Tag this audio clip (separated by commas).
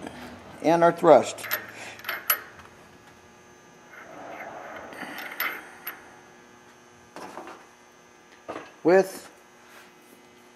Speech